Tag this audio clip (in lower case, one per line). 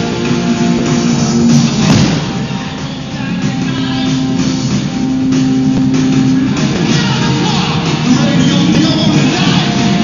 rock and roll
music